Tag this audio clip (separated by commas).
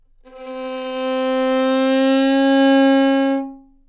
Musical instrument, Music, Bowed string instrument